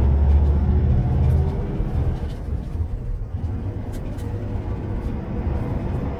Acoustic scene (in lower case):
bus